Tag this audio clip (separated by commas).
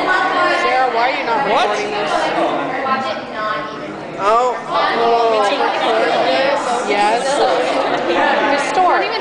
Speech